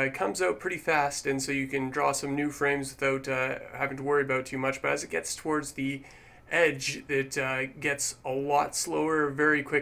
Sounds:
Speech

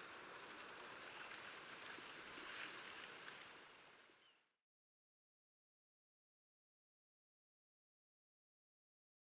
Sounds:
Bird, Animal

